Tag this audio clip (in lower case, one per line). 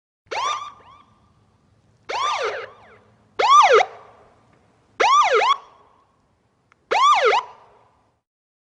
siren
vehicle
motor vehicle (road)
alarm